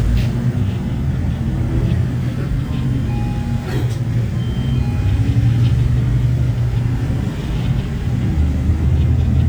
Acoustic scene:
bus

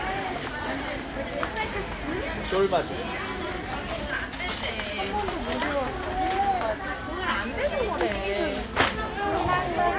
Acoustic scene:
crowded indoor space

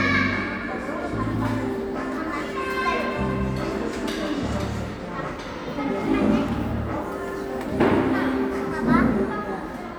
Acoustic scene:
cafe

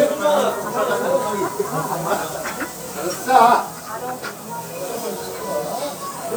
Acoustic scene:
restaurant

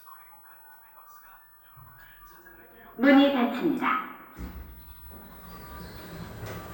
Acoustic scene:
elevator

